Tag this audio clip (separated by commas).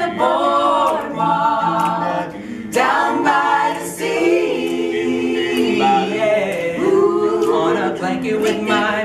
Choir